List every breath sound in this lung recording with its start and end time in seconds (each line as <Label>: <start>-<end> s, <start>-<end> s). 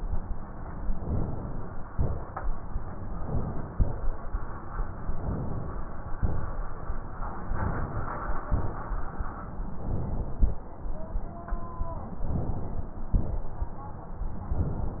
Inhalation: 0.97-1.90 s, 3.08-3.72 s, 5.18-6.13 s, 7.51-8.46 s, 9.81-10.66 s, 12.24-13.13 s
Exhalation: 1.90-2.45 s, 3.72-4.21 s, 6.22-6.79 s, 8.54-9.20 s, 13.17-13.79 s